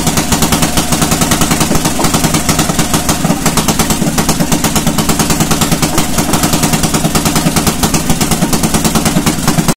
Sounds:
Engine, Idling

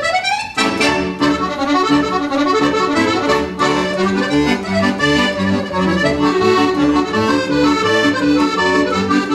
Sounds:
playing accordion

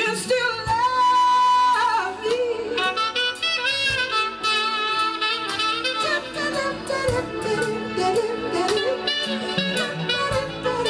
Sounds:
Saxophone, Music, Wind instrument, Orchestra, Singing

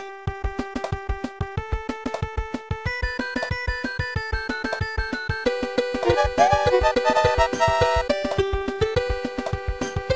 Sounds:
Music

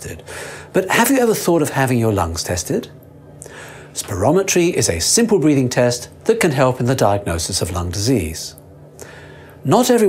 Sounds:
Speech

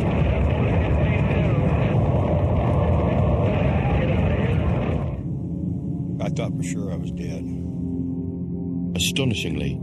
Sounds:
Speech, Eruption

